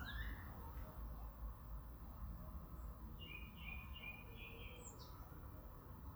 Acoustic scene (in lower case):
park